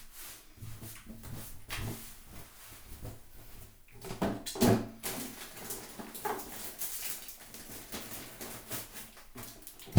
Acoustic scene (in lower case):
restroom